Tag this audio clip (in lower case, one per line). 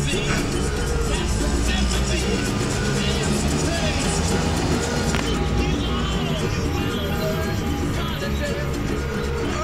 vehicle
truck
music